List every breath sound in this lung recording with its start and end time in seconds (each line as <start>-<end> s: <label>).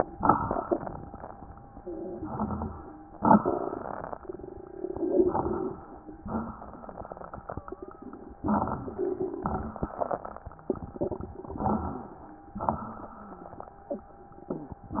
0.00-0.78 s: exhalation
0.00-0.78 s: crackles
2.07-2.92 s: inhalation
2.08-2.92 s: crackles
3.17-4.27 s: exhalation
3.18-4.24 s: crackles
4.92-6.20 s: crackles
4.96-6.26 s: inhalation
6.21-8.38 s: exhalation
7.48-8.15 s: wheeze
8.37-9.23 s: crackles
8.39-9.25 s: inhalation
9.28-10.66 s: crackles
9.28-11.45 s: exhalation
11.46-12.31 s: inhalation
11.47-12.29 s: crackles
12.46-13.57 s: crackles
12.50-13.61 s: exhalation